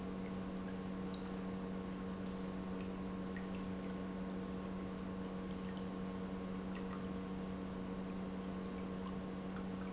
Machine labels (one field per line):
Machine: pump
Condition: normal